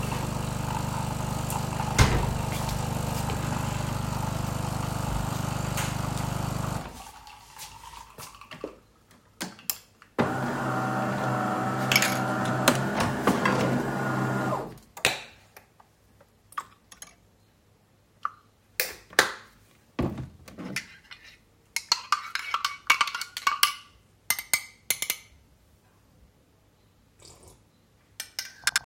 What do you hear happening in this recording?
I started a coffee machine, and walked to get a milk carton opened the box, poured into the mug and closed it. Then I stirred the milk and the coffee finally drank it.